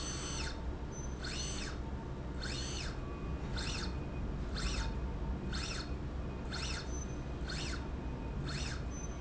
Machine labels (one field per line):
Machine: slide rail